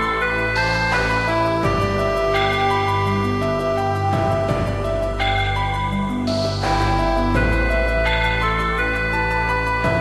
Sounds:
video game music, music

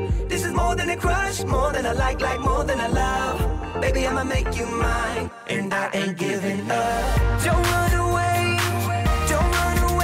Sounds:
music

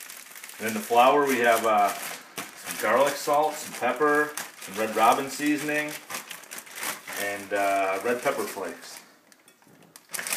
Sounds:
speech

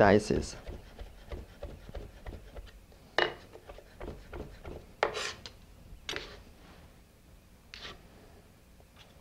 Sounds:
inside a small room, speech

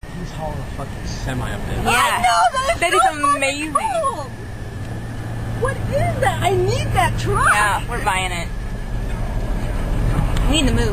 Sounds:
speech, vehicle

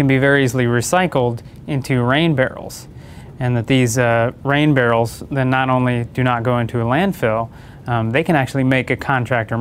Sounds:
speech

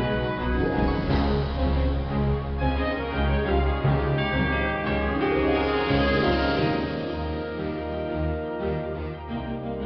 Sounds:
hammond organ, organ

